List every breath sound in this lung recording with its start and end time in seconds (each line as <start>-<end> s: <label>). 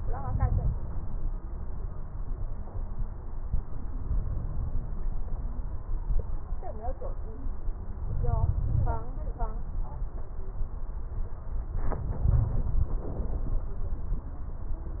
0.00-0.70 s: inhalation
7.96-9.02 s: inhalation
12.26-12.95 s: inhalation